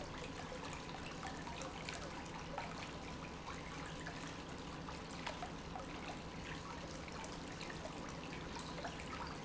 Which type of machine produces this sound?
pump